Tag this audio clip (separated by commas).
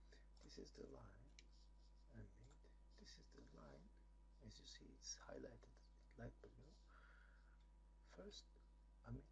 Speech